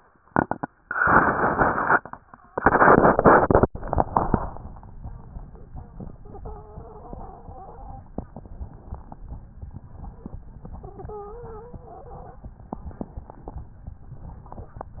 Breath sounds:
6.21-8.10 s: wheeze
8.29-9.20 s: inhalation
10.68-12.58 s: wheeze
12.79-13.70 s: inhalation

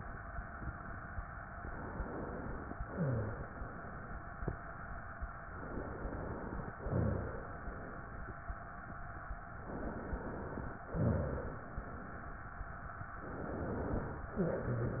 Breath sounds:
1.50-2.77 s: inhalation
2.77-3.62 s: exhalation
2.90-3.36 s: rhonchi
5.56-6.74 s: inhalation
6.74-7.46 s: exhalation
6.74-7.46 s: rhonchi
9.56-10.82 s: inhalation
10.89-11.71 s: exhalation
10.89-11.71 s: rhonchi
13.24-14.25 s: inhalation
14.36-15.00 s: exhalation
14.36-15.00 s: rhonchi

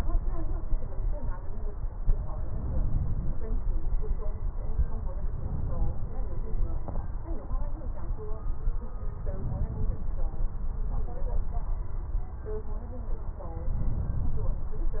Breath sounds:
2.47-3.44 s: inhalation
5.31-6.07 s: inhalation
9.35-10.11 s: inhalation
13.71-14.57 s: inhalation

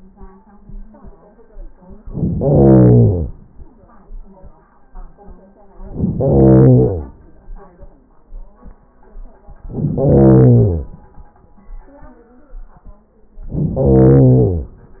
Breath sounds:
2.02-3.33 s: inhalation
5.79-7.11 s: inhalation
9.66-10.98 s: inhalation
13.41-14.73 s: inhalation

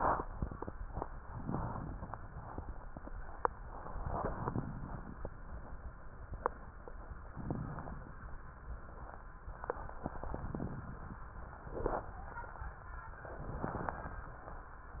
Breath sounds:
1.19-2.30 s: inhalation
1.19-2.30 s: crackles
3.63-4.63 s: inhalation
3.63-4.63 s: crackles
4.64-5.94 s: exhalation
4.64-5.94 s: crackles
7.30-8.21 s: inhalation
7.30-8.21 s: crackles
10.02-11.22 s: inhalation
10.02-11.22 s: crackles
11.41-12.65 s: exhalation
11.41-12.65 s: crackles
13.21-14.25 s: inhalation
13.21-14.25 s: crackles

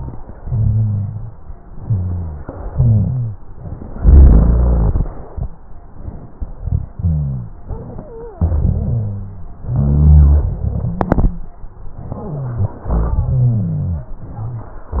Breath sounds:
0.42-1.35 s: inhalation
0.42-1.35 s: rhonchi
1.73-2.39 s: exhalation
1.73-2.39 s: rhonchi
2.71-3.38 s: inhalation
2.71-3.38 s: rhonchi
4.00-5.12 s: exhalation
4.00-5.12 s: rhonchi
6.89-7.63 s: inhalation
6.89-7.63 s: rhonchi
8.33-9.51 s: exhalation
8.33-9.51 s: rhonchi
9.70-10.49 s: inhalation
9.70-10.49 s: rhonchi
10.55-11.54 s: exhalation
10.55-11.54 s: rhonchi
12.26-12.80 s: inhalation
12.26-12.80 s: rhonchi
12.88-14.15 s: exhalation
12.88-14.15 s: rhonchi

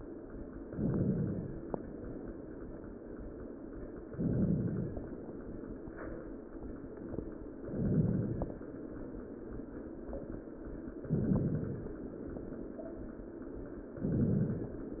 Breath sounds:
0.66-1.61 s: inhalation
4.09-5.04 s: inhalation
7.69-8.64 s: inhalation
11.09-12.04 s: inhalation

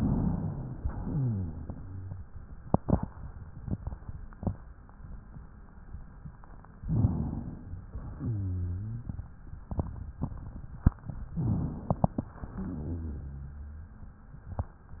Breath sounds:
0.75-2.28 s: exhalation
0.95-2.28 s: wheeze
6.77-7.86 s: inhalation
6.79-7.42 s: rhonchi
7.92-9.31 s: exhalation
8.16-9.17 s: wheeze
11.25-12.26 s: inhalation
11.37-11.89 s: rhonchi
12.26-13.99 s: exhalation
12.52-13.99 s: wheeze

